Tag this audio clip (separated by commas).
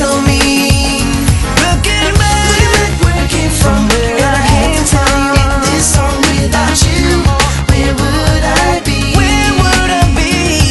Music